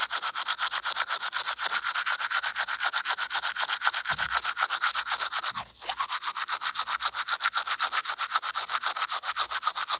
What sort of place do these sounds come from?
restroom